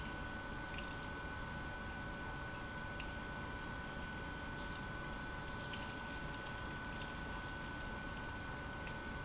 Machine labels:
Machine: pump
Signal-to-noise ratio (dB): 6 dB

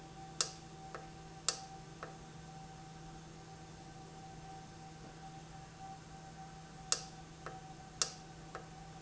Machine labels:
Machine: valve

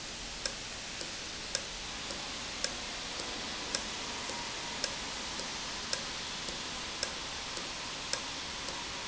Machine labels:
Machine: valve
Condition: normal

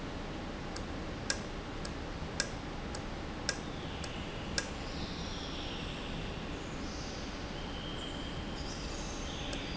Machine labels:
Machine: valve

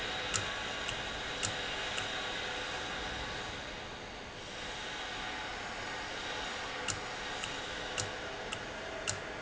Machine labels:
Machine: valve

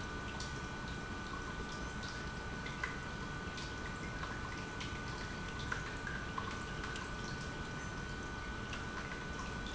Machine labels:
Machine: pump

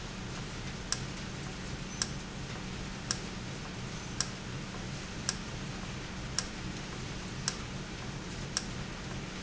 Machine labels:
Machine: valve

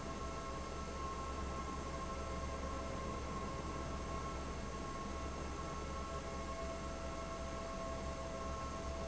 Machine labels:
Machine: fan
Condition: abnormal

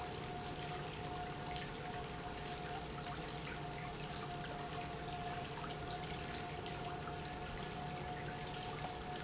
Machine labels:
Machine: pump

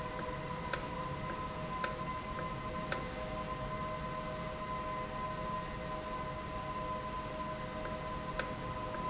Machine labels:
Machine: valve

